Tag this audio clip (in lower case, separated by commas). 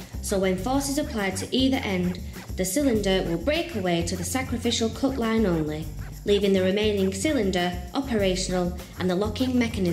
speech, music